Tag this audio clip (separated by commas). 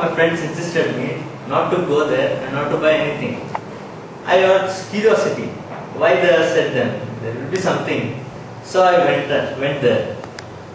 man speaking, Speech